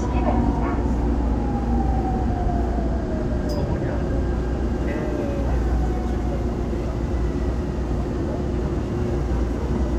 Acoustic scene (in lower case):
subway train